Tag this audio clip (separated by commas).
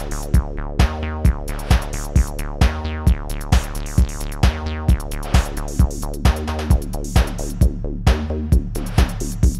Music, Techno, Electronic music